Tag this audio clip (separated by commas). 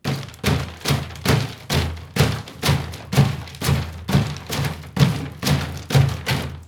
Tools